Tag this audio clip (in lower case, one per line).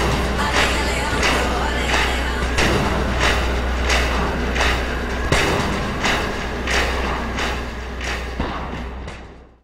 music
soundtrack music
jazz